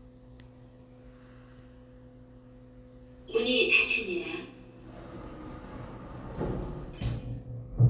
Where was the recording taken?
in an elevator